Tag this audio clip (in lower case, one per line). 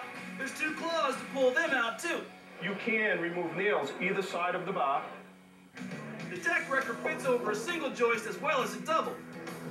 speech
music